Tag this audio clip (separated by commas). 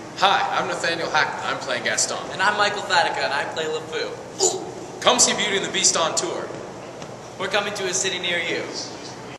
Speech